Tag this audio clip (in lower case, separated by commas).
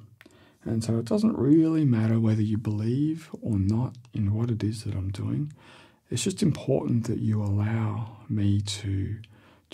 speech